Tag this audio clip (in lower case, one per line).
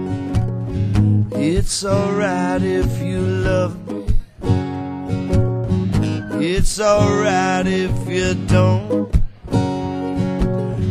acoustic guitar
guitar
plucked string instrument
strum
musical instrument
music